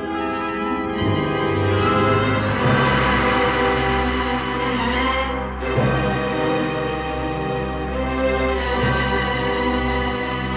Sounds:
Music

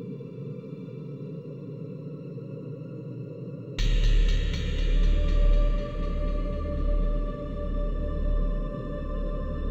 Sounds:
Soundtrack music, Music

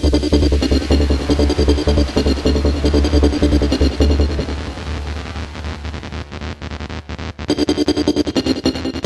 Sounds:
Electronic music, Music, Trance music

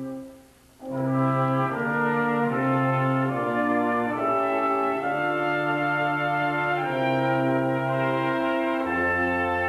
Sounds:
Music

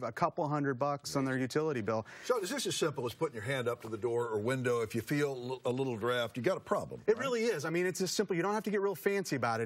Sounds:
Speech

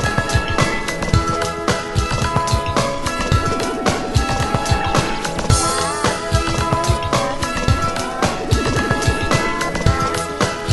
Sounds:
Music

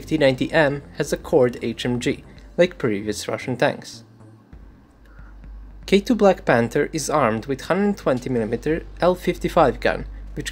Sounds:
firing cannon

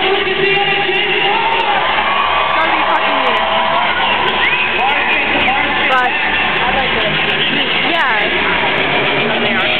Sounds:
Music, Speech

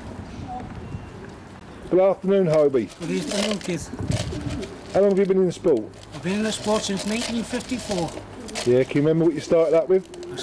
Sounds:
Coo, Bird, Speech

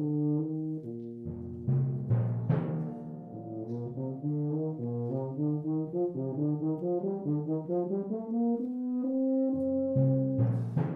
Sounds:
Brass instrument

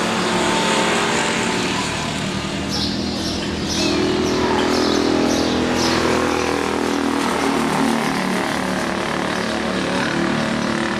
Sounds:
Speech, auto racing, Vehicle, Car

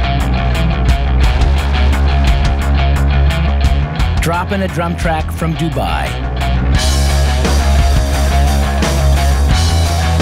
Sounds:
Speech, Music

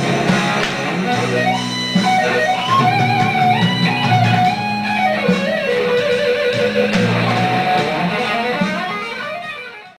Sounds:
Musical instrument, Guitar, Strum, Electric guitar, Music, Plucked string instrument

